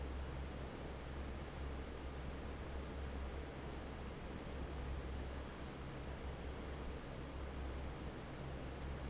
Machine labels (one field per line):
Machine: fan